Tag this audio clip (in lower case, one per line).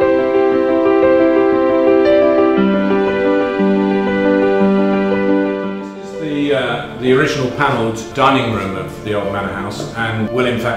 music
speech